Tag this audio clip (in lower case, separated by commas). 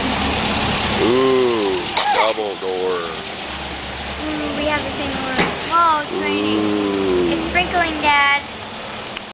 vehicle, speech